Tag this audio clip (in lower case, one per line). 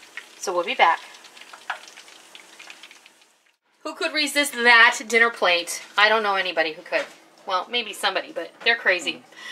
frying (food)